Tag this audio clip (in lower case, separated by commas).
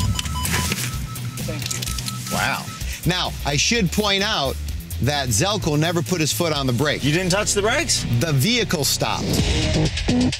music, outside, urban or man-made, speech